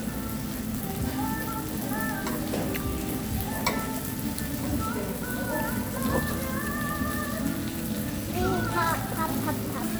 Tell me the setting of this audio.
restaurant